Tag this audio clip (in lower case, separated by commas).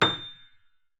keyboard (musical), music, musical instrument, piano